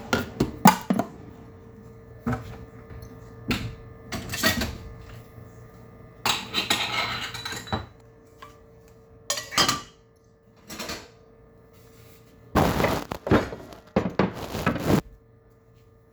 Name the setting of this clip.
kitchen